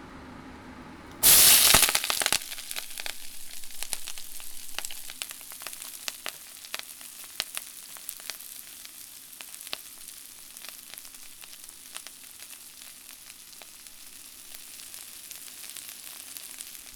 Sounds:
home sounds, frying (food)

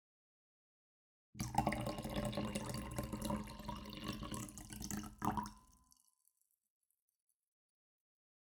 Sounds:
liquid

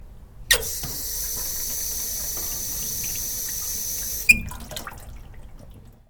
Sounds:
domestic sounds, water, sink (filling or washing)

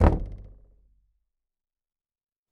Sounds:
home sounds, knock, door

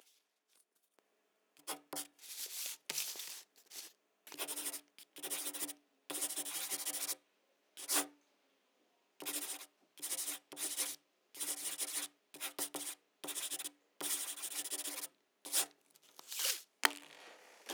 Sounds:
writing, home sounds

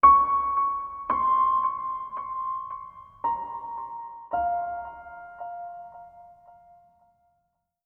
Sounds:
piano, musical instrument, keyboard (musical), music

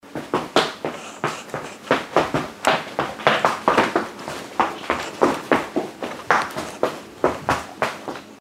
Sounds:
run

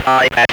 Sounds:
speech, human voice

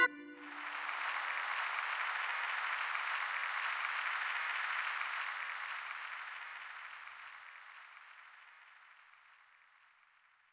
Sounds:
applause, musical instrument, music, keyboard (musical), human group actions

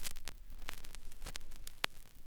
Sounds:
crackle

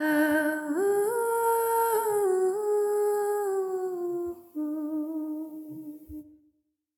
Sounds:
singing, human voice, female singing

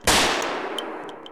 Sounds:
gunshot, explosion

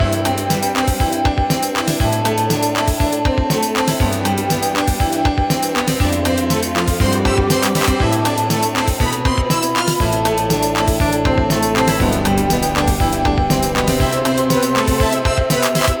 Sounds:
keyboard (musical), music, musical instrument, organ

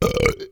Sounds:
burping

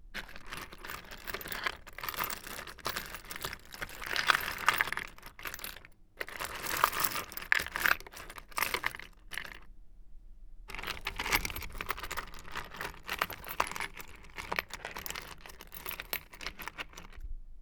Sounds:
tools

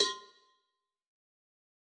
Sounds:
bell, cowbell

